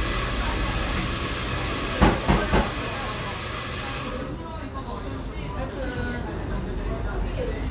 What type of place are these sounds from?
cafe